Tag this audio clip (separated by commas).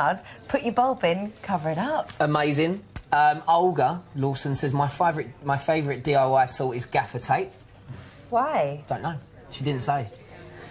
Speech